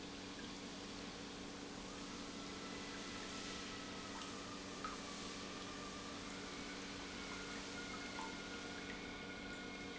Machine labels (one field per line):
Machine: pump